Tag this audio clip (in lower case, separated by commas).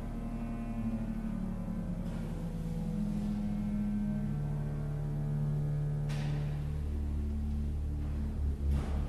musical instrument, music